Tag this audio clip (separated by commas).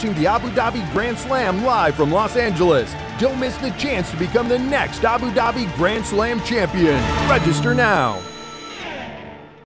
Music, Speech